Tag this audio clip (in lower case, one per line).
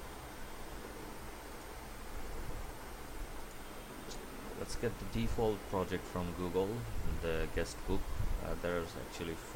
speech